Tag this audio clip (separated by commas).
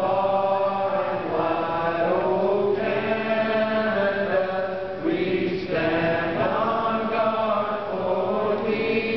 Male singing